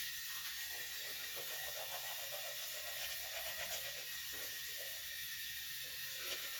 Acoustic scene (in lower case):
restroom